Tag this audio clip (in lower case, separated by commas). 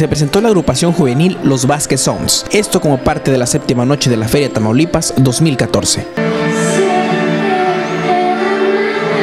music, speech